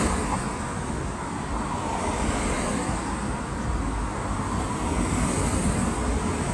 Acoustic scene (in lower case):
street